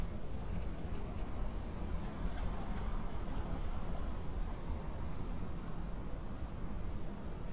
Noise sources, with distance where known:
background noise

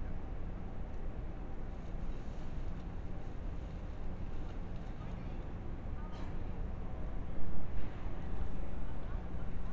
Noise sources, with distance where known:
background noise

